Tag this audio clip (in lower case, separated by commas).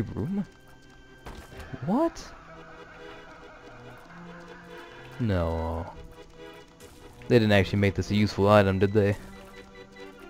speech, music